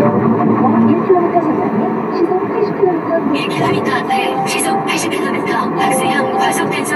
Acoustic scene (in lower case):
car